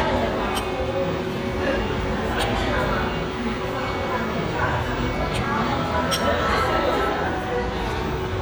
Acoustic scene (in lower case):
restaurant